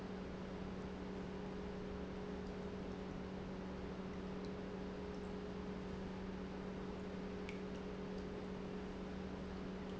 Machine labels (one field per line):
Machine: pump